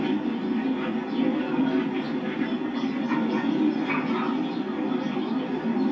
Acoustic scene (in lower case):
park